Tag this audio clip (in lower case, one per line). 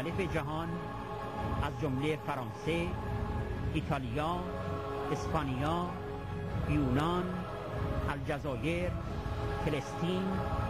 speech
music